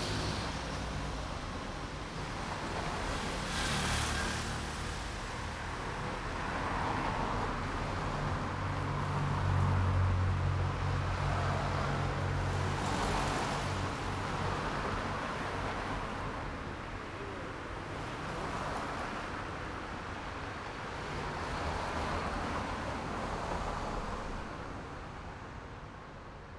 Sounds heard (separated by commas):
people talking, motorcycle engine accelerating, motorcycle, car engine accelerating, car, car wheels rolling